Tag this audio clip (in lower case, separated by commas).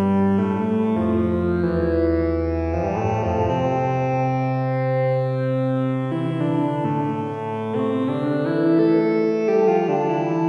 keyboard (musical), piano, electric piano